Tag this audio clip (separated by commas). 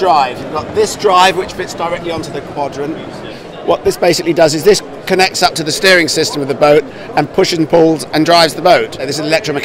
Speech